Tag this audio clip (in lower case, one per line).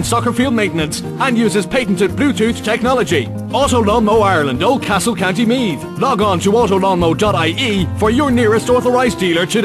music
speech